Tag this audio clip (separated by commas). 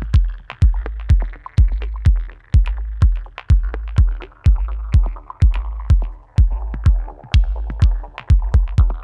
House music, Music